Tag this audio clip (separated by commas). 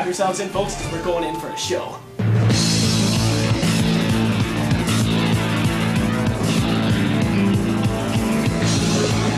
Music, Speech